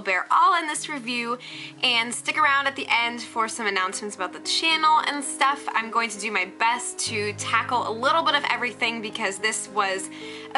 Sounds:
speech, music

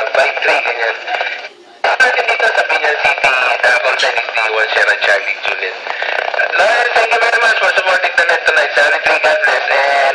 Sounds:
radio, speech

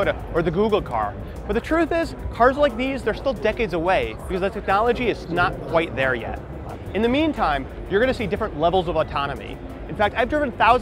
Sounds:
speech

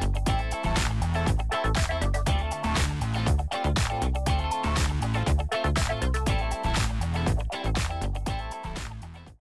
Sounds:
music

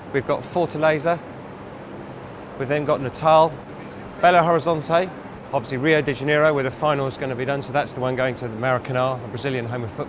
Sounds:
speech

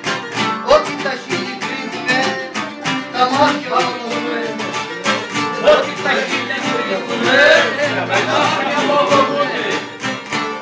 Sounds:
music, speech

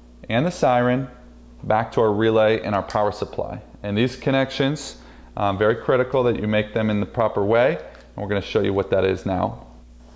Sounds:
speech

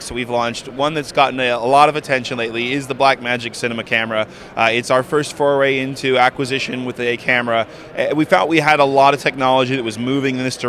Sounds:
speech

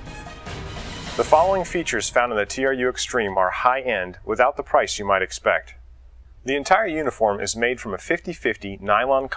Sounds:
music, speech

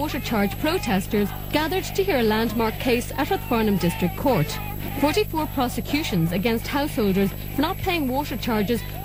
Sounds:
speech

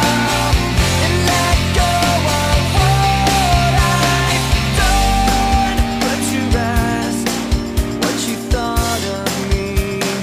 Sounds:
music, grunge

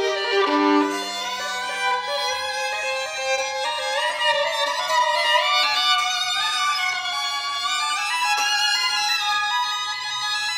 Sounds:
bowed string instrument, fiddle, music, musical instrument

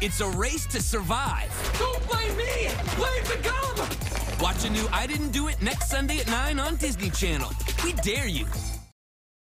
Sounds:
speech, music

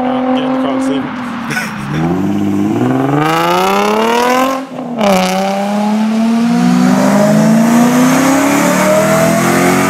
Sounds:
speech, car passing by

